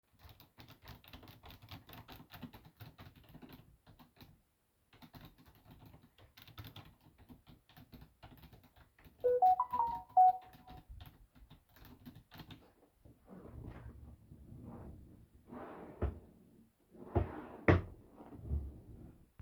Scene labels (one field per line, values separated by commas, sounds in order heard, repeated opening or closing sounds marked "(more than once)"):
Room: office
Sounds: keyboard typing, phone ringing, wardrobe or drawer (more than once)